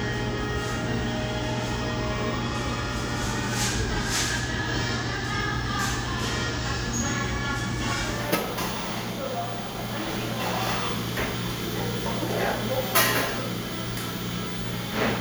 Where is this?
in a cafe